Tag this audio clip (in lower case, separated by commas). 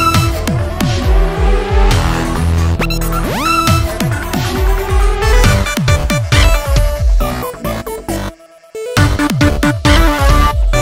music, electronic music, dubstep